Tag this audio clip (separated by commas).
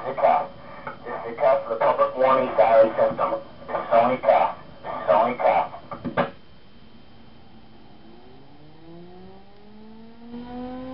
Speech